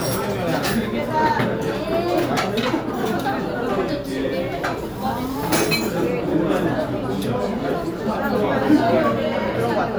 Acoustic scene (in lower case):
restaurant